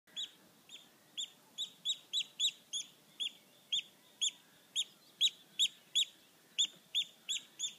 A bird chirping loudly nearby while ambient bird noises from far away are barely audible